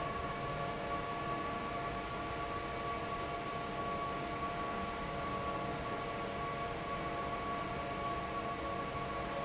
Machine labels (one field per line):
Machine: fan